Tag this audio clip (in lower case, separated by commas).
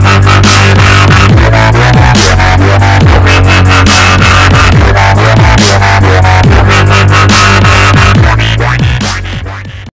electronic music, music, dubstep